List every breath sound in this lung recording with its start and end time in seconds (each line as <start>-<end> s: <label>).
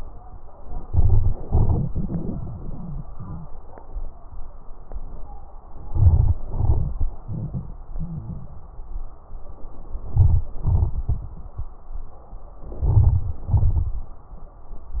0.82-1.41 s: inhalation
0.82-1.41 s: crackles
1.44-3.51 s: exhalation
1.44-3.51 s: crackles
5.76-6.41 s: inhalation
5.76-6.41 s: crackles
6.43-9.30 s: exhalation
6.43-9.30 s: crackles
10.10-10.60 s: inhalation
10.10-10.60 s: crackles
10.64-12.42 s: exhalation
10.64-12.42 s: crackles
12.68-13.48 s: inhalation
12.68-13.48 s: crackles
13.52-14.32 s: exhalation
13.52-14.32 s: crackles